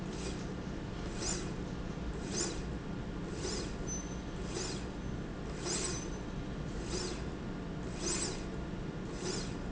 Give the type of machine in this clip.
slide rail